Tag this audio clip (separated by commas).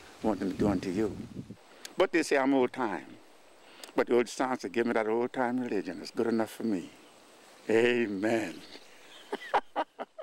Speech